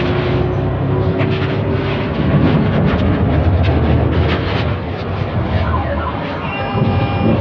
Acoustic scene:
bus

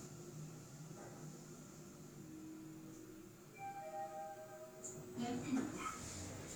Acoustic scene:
elevator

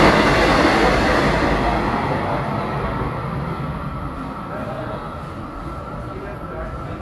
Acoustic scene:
subway station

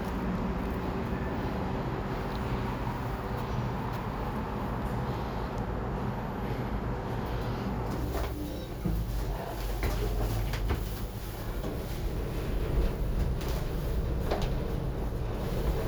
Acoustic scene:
elevator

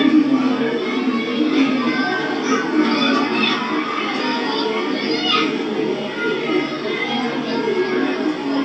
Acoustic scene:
park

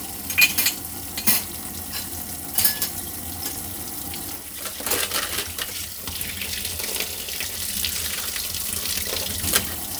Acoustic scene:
kitchen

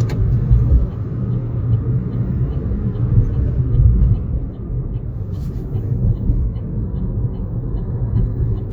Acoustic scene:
car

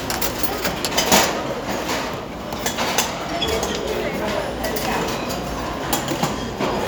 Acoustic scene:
restaurant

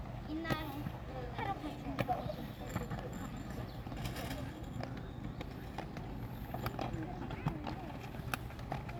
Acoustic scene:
park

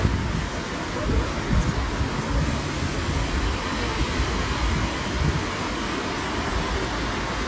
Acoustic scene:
street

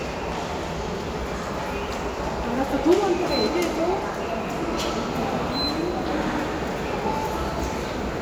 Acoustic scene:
subway station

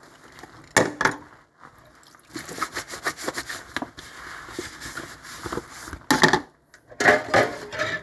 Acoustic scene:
kitchen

